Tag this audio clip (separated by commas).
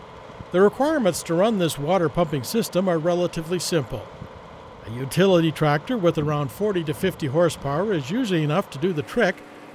pumping water